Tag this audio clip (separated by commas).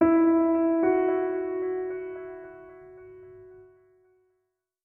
Musical instrument, Keyboard (musical), Music, Piano